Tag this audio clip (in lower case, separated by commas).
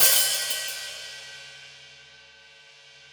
hi-hat, musical instrument, music, percussion, cymbal